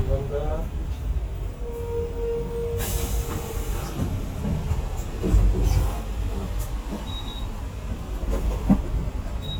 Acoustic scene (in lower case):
bus